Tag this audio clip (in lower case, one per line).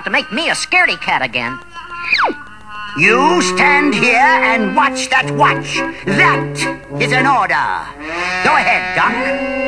music
speech